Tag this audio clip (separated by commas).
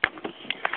Alarm, Telephone